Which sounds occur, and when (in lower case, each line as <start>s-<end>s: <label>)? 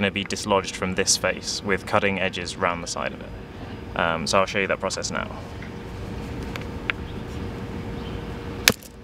0.0s-9.0s: background noise
0.0s-3.1s: male speech
3.9s-5.3s: male speech
6.5s-6.6s: generic impact sounds
6.9s-6.9s: generic impact sounds
7.0s-8.6s: bird
8.6s-8.9s: generic impact sounds